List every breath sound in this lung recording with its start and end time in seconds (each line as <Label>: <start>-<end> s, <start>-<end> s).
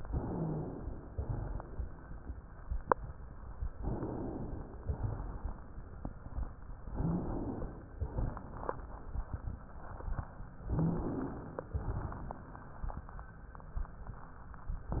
Inhalation: 0.00-1.11 s, 3.79-4.82 s, 6.90-7.92 s, 10.69-11.71 s, 14.90-15.00 s
Exhalation: 1.11-3.71 s, 4.84-6.89 s, 7.90-10.62 s, 11.71-14.81 s
Wheeze: 6.95-7.38 s, 10.74-11.37 s